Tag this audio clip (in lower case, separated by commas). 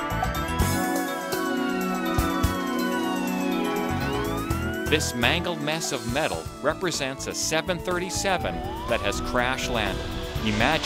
emergency vehicle, fire engine, speech, music